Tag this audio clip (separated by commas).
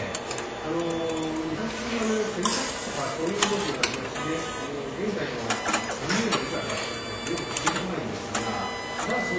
Printer, printer printing, Speech